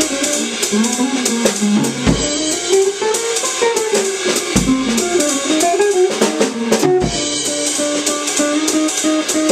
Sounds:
Drum kit, playing drum kit, Drum, Music, Musical instrument, Guitar, Strum

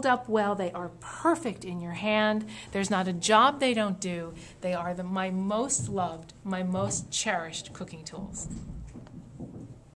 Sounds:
Speech

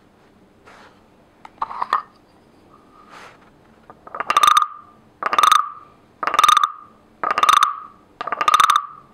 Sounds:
frog croaking

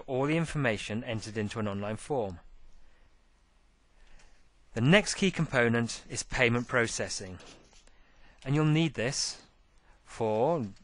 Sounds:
monologue, Speech

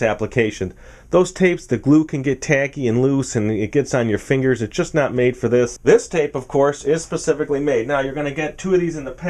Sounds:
Speech

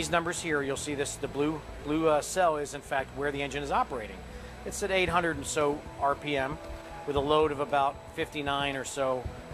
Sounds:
Speech, Music

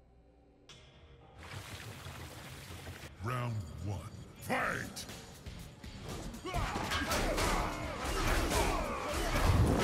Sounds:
Speech, Music

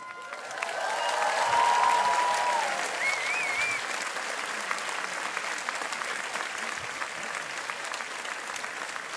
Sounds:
Female speech, Narration, Speech

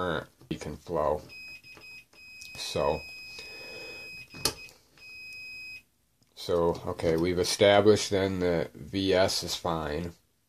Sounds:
inside a small room, Speech

